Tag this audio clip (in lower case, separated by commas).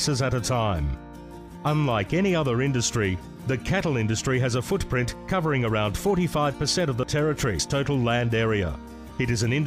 speech, music